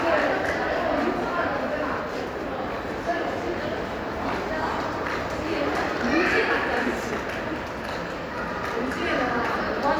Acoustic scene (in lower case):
crowded indoor space